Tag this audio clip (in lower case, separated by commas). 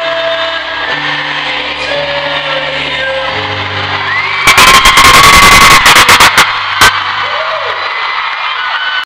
male singing, music